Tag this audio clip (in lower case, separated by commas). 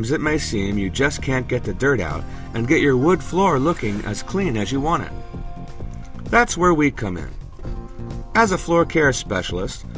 speech, music